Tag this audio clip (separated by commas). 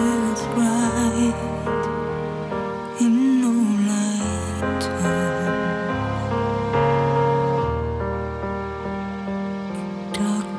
Music